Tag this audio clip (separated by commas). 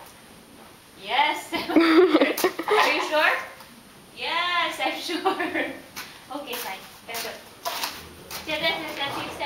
Speech